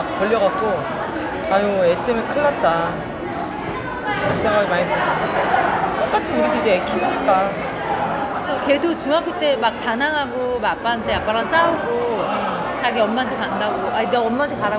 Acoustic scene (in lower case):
crowded indoor space